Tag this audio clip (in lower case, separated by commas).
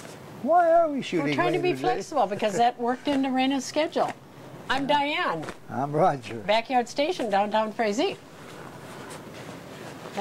speech